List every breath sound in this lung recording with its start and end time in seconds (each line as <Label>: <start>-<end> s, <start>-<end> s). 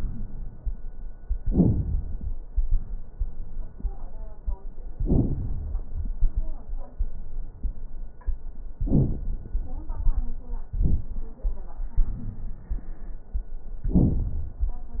Inhalation: 11.96-12.80 s
Exhalation: 13.80-14.64 s
Crackles: 11.96-12.80 s, 13.80-14.64 s